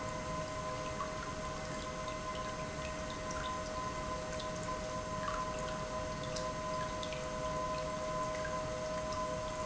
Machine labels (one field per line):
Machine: pump